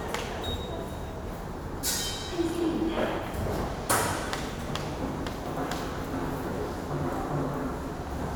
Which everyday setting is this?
subway station